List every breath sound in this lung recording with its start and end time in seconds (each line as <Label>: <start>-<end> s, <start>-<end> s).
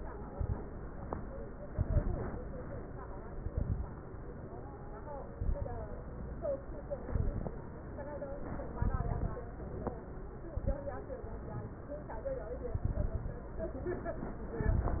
Inhalation: 0.28-0.60 s, 1.71-2.30 s, 3.32-3.91 s, 5.34-5.93 s, 6.99-7.58 s, 8.78-9.37 s, 10.54-10.92 s, 12.77-13.47 s, 14.63-15.00 s
Crackles: 0.28-0.60 s, 1.71-2.30 s, 3.32-3.91 s, 5.34-5.93 s, 6.99-7.58 s, 8.78-9.37 s, 10.54-10.92 s, 14.63-15.00 s